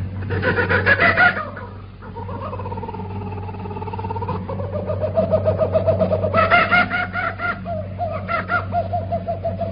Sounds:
radio

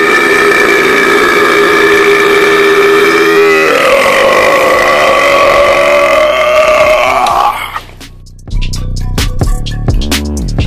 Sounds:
people burping

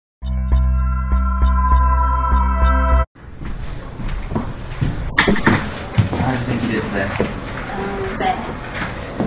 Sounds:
speech
music
inside a large room or hall

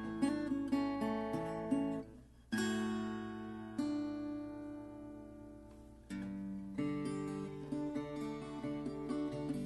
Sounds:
plucked string instrument
guitar
strum
musical instrument
acoustic guitar
music

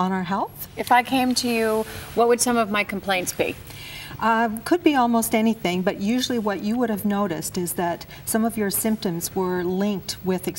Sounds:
speech
conversation

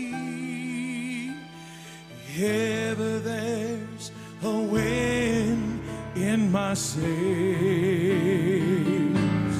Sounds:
music

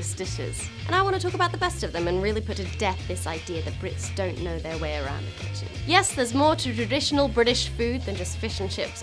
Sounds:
speech
music

